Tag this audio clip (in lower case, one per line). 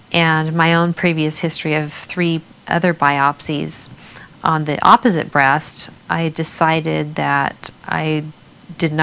speech